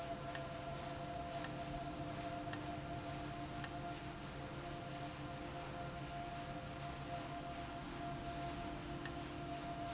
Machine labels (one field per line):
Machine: valve